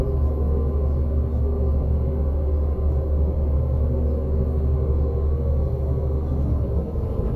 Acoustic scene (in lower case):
bus